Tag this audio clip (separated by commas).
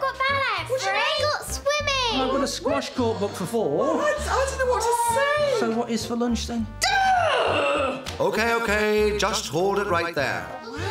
Speech, Music